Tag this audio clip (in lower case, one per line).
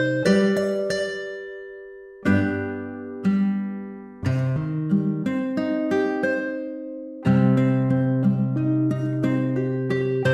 guitar
plucked string instrument
music
musical instrument
acoustic guitar